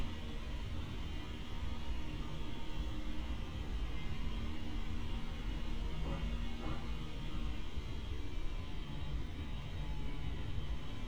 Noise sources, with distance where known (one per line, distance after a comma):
unidentified powered saw, far